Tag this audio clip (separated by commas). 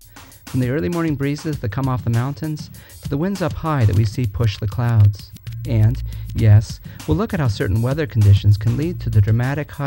Speech, Music